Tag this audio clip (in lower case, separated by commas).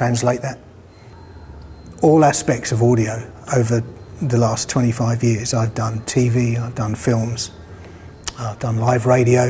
speech